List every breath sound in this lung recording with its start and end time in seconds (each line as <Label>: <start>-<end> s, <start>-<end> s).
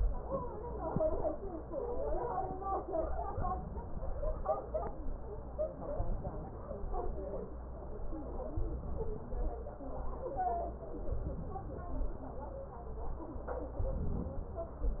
Inhalation: 2.94-4.44 s, 5.89-7.26 s, 8.56-9.64 s, 10.92-12.29 s, 13.77-15.00 s